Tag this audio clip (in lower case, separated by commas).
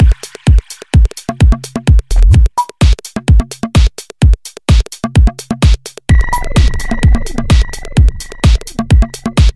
music, techno